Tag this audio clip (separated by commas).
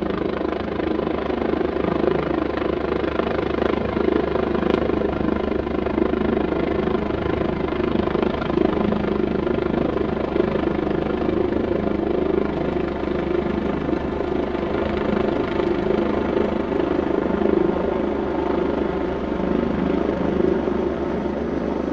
Vehicle, Aircraft